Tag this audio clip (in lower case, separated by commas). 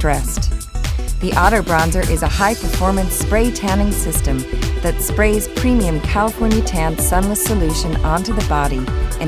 speech, music